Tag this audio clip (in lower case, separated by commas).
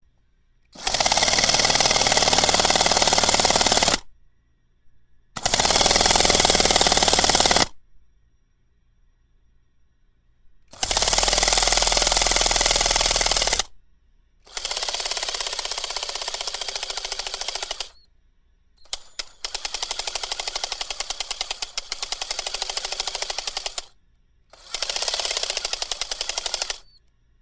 power tool, drill, tools